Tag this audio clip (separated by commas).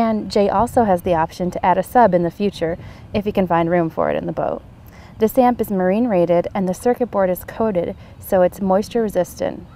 Speech